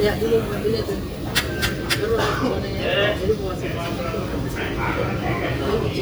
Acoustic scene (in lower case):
restaurant